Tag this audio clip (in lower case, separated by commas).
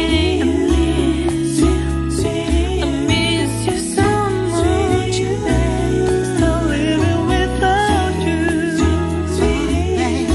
singing